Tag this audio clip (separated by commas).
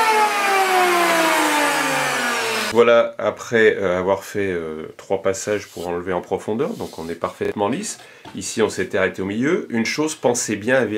planing timber